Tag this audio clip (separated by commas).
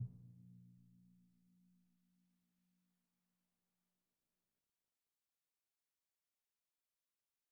Percussion, Music, Drum, Musical instrument